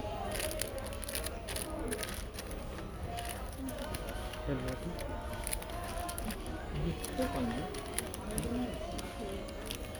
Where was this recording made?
in a crowded indoor space